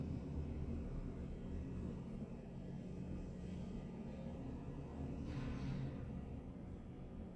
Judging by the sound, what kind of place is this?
elevator